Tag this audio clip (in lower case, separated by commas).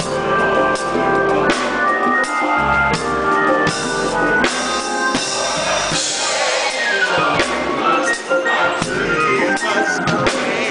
piano, music, musical instrument, keyboard (musical)